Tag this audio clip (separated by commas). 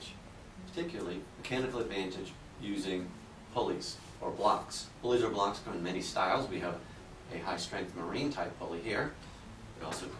Speech